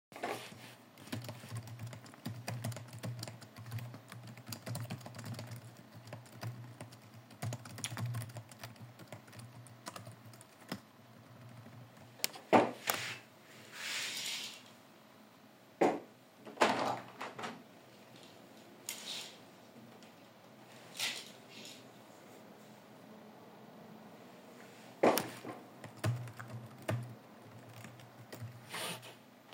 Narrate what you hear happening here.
I was coding on my laptop and decided to open up the window to let some fresh air inside.